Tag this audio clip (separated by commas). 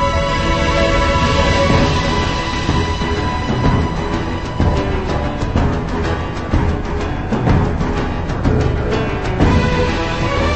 Music